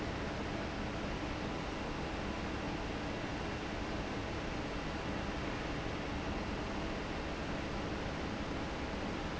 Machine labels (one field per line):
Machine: fan